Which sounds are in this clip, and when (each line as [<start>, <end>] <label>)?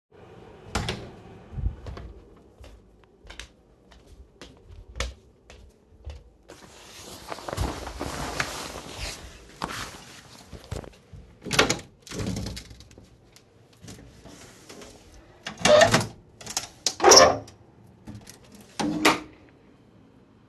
[0.72, 2.21] door
[2.56, 6.33] footsteps
[11.42, 13.40] window
[15.44, 19.52] window